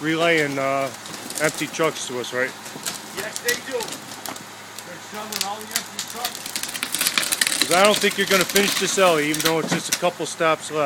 A truck engine idles as two men talk